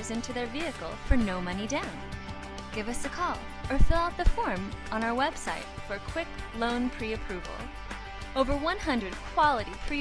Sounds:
music, speech

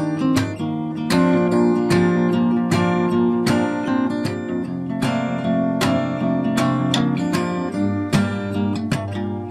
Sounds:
musical instrument, plucked string instrument, music, strum, guitar

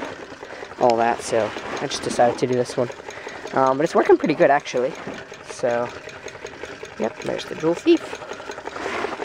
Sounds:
speech, inside a small room

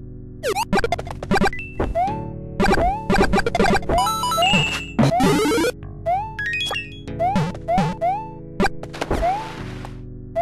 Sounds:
video game music

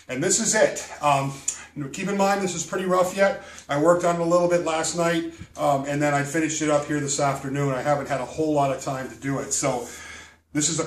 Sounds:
speech

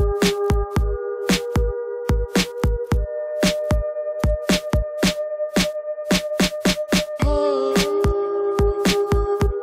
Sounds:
dubstep, music, electronic music

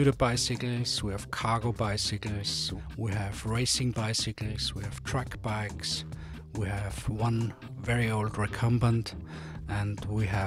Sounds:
speech, music

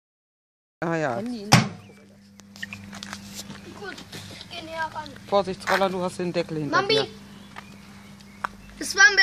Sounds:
animal, pets, speech, microwave oven

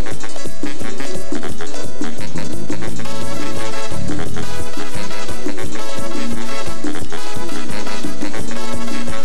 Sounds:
music, happy music

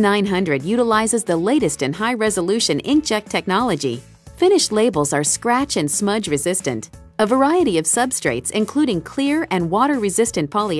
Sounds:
music, speech

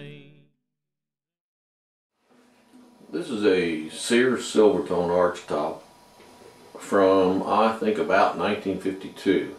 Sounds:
speech

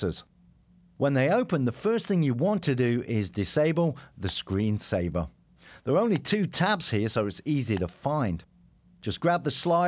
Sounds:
speech

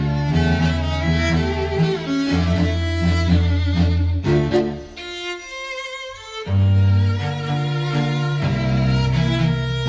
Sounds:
string section, bowed string instrument, fiddle, music, cello, musical instrument

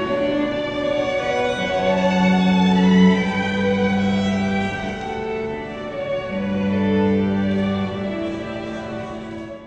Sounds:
wedding music, music

